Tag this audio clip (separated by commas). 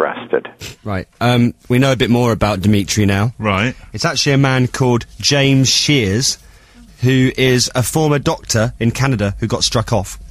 Speech